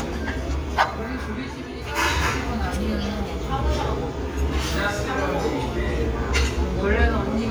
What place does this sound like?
restaurant